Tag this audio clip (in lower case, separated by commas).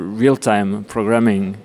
speech, human voice